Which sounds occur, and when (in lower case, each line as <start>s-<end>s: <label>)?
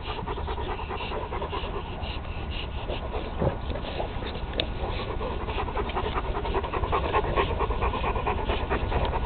0.0s-9.2s: background noise
0.0s-9.2s: pant (dog)
2.2s-2.3s: tick
4.5s-4.7s: tick
5.8s-6.0s: tick
9.0s-9.1s: tick